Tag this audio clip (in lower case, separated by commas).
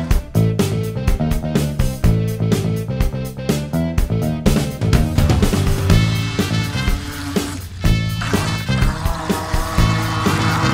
music